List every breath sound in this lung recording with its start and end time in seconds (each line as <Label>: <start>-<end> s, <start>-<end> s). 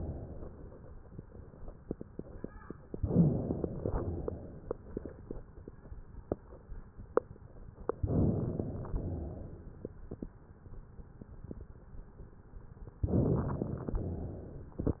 Inhalation: 2.94-3.81 s, 8.03-8.90 s, 13.05-13.93 s
Exhalation: 3.87-4.75 s, 8.94-9.81 s, 14.00-14.88 s